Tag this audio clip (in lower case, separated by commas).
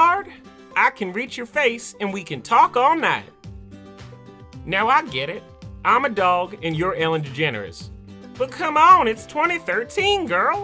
music, speech